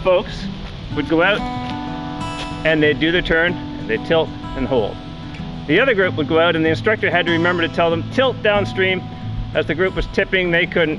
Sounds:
Speech, Music

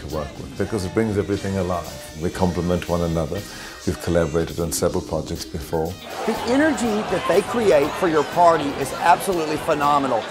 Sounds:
Speech, Crowd, Music

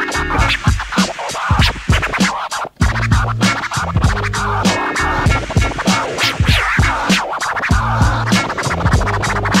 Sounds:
Music, Scratching (performance technique)

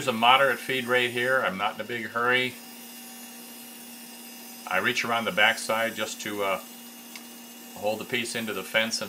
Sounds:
Speech, Tools, Wood

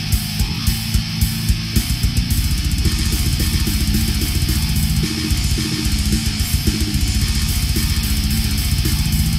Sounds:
Music

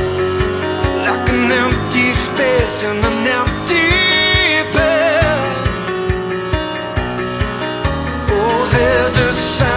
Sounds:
Music

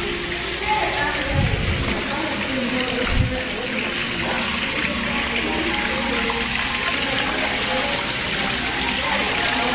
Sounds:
Water, Music, outside, urban or man-made, Speech

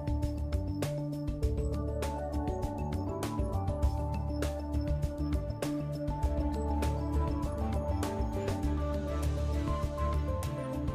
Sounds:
Music

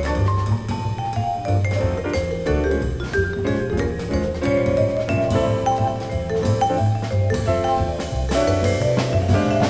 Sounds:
playing vibraphone

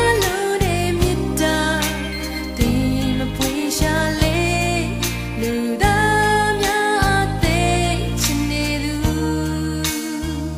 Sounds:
Christian music, Music

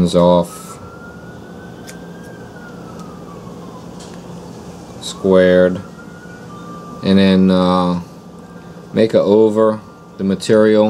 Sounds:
Speech

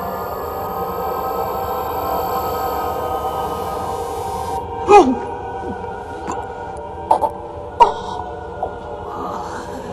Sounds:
inside a small room

